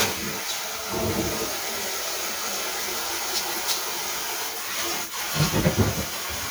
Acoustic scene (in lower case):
kitchen